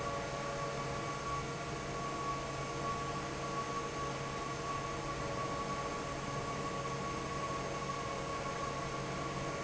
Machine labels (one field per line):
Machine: fan